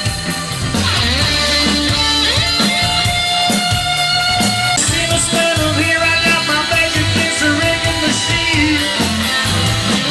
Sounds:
roll, music

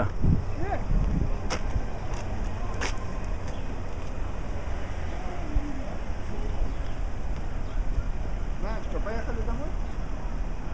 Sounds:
vehicle, car, speech

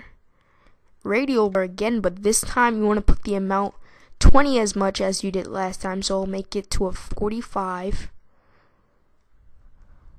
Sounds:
speech

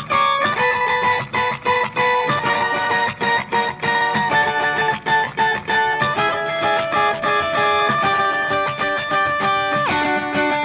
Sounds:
distortion, electric guitar, music

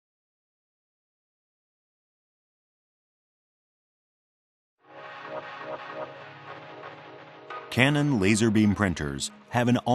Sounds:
speech, music

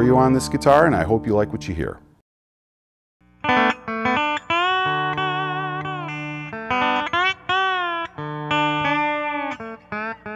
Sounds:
music, plucked string instrument, musical instrument, speech, guitar

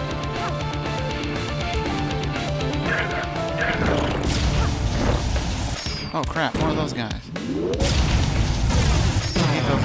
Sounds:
speech, music

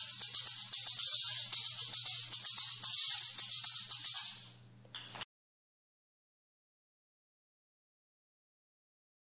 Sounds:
maraca, music

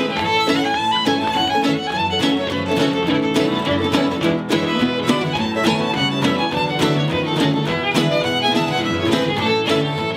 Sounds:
musical instrument, fiddle, music

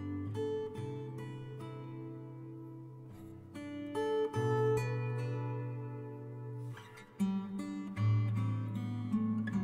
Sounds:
acoustic guitar, playing acoustic guitar, plucked string instrument, musical instrument, music, guitar

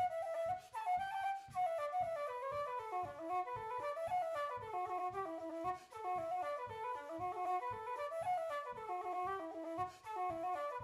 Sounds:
flute, wind instrument, music

